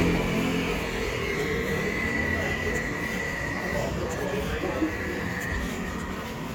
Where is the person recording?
in a residential area